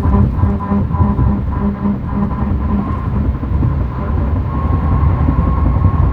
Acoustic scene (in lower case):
car